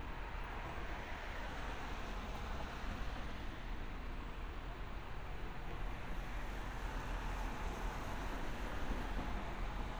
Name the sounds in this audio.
background noise